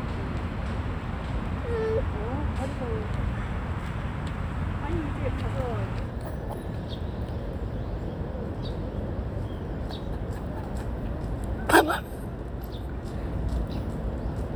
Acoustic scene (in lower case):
residential area